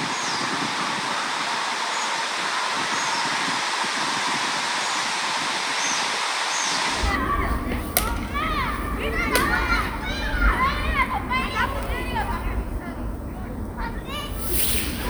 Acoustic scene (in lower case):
park